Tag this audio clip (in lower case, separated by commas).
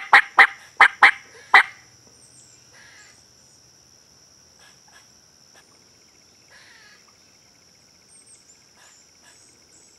turkey gobbling